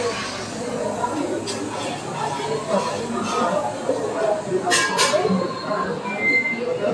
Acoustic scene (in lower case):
cafe